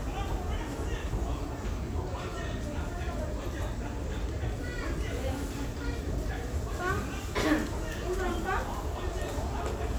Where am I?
in a crowded indoor space